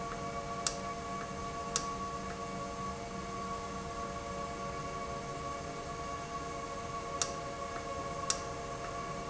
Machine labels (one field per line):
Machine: valve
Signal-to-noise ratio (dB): -6 dB